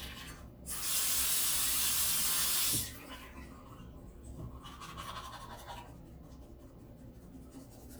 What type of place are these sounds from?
restroom